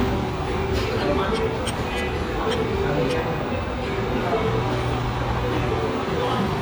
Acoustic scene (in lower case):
restaurant